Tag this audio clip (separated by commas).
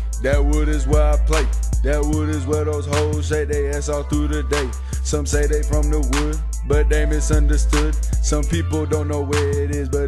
Music